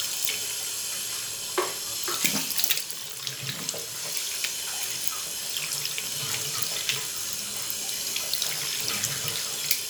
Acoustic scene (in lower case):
restroom